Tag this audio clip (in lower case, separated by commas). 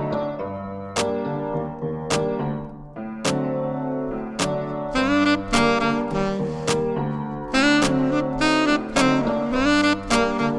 playing saxophone